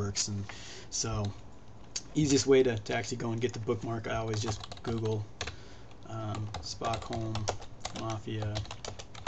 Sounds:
speech

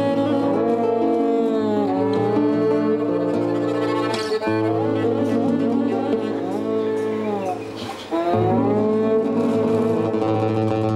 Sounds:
cello, musical instrument, music

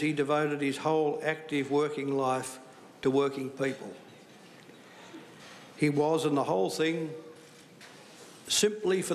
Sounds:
man speaking, speech, monologue

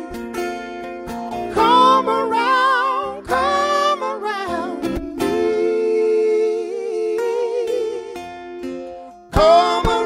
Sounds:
music

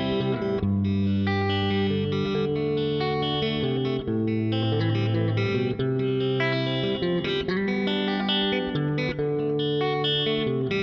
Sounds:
bass guitar, music, guitar, musical instrument, plucked string instrument, electric guitar

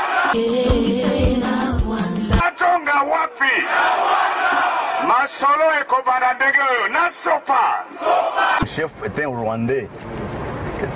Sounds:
music, speech

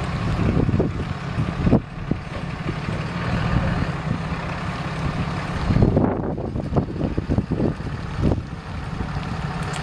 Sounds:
car, vehicle

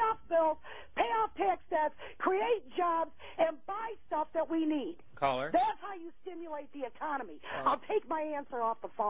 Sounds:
speech

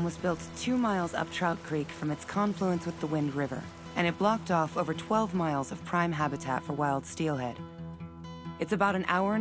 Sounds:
music, speech

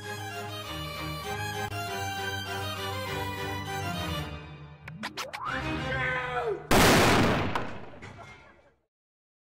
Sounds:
explosion, music

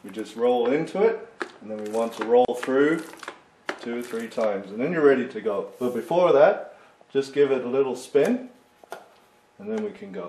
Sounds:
speech

